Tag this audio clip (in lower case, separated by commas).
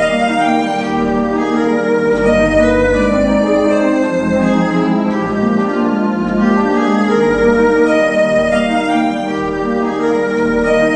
hammond organ, organ